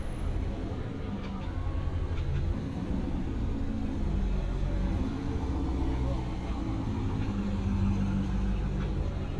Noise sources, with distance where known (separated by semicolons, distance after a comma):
engine of unclear size; unidentified human voice